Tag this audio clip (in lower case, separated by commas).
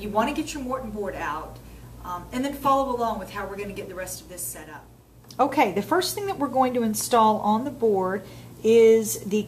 speech